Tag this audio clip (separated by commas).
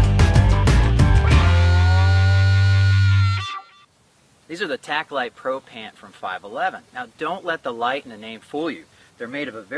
Speech